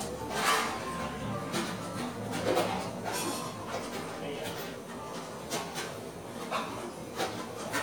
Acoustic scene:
cafe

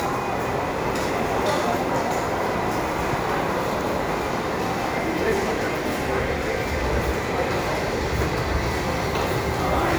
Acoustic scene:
subway station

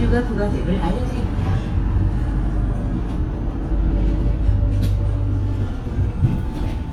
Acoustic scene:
bus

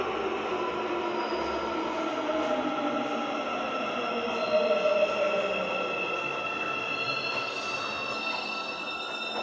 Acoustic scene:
subway station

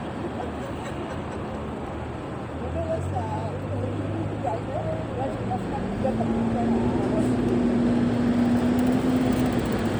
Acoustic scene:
street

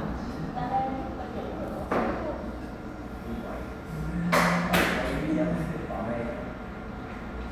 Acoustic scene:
cafe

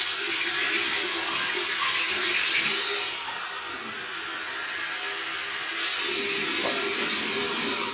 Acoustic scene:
restroom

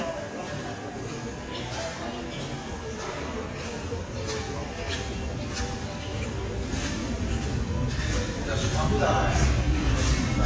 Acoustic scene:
subway station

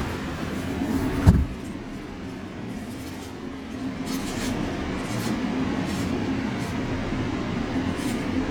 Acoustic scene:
subway station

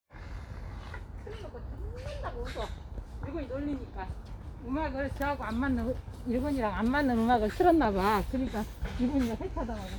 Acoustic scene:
park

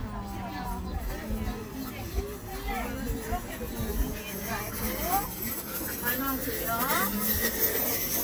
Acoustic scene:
park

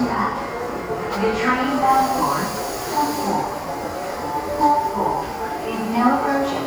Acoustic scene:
subway station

